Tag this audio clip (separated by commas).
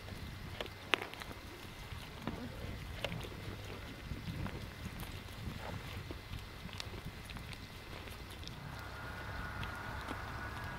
Animal